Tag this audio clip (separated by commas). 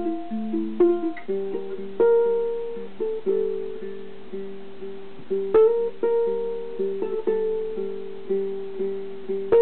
Music, inside a small room, Guitar, Ukulele